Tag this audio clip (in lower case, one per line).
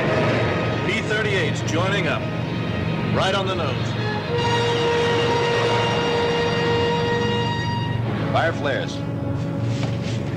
music
speech